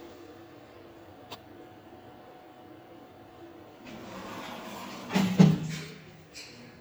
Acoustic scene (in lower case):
elevator